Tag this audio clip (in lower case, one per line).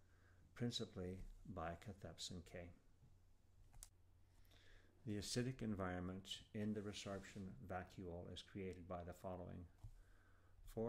speech